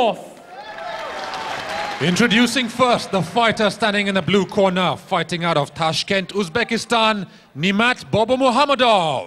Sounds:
Speech

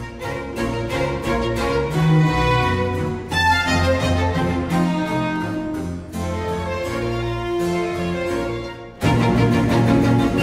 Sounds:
Music, Musical instrument, fiddle

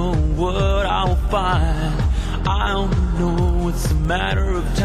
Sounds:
Music

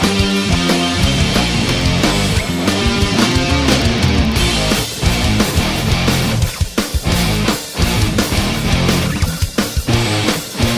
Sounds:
Disco, Rock and roll, Punk rock, Progressive rock, Music

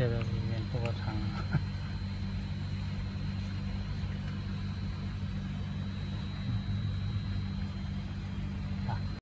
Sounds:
Speech

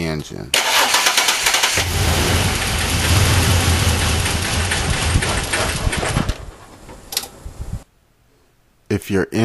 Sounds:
car engine starting

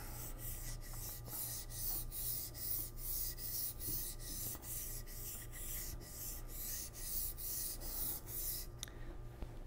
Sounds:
sharpen knife

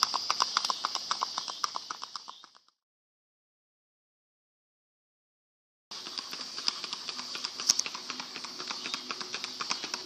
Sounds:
Clip-clop

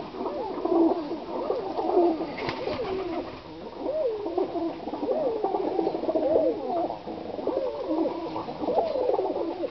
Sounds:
Pigeon, inside a small room, Bird

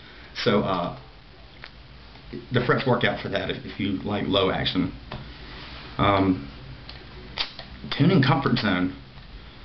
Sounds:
Speech

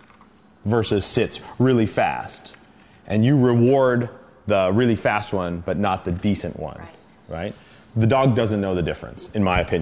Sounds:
Speech

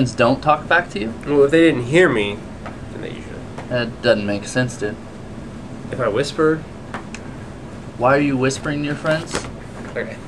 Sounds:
Speech

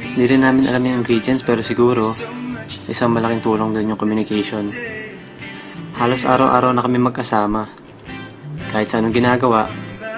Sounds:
Soundtrack music, Music, Speech

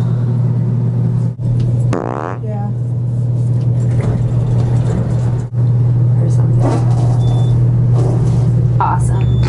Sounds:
people farting

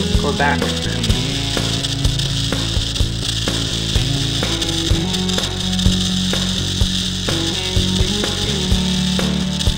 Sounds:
Speech, Music

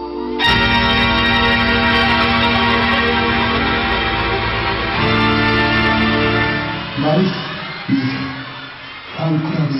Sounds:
Speech, Music

